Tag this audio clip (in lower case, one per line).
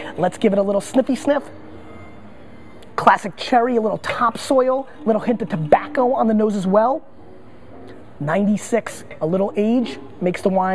speech